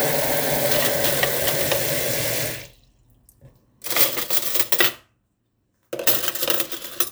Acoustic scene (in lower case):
kitchen